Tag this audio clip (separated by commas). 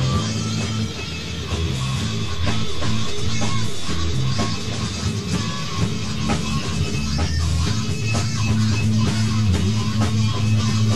Music, Rock music